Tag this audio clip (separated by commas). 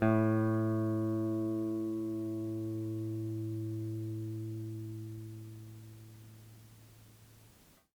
Guitar, Plucked string instrument, Musical instrument, Music